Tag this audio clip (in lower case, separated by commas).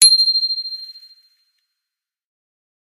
bicycle bell, alarm, bell, bicycle, vehicle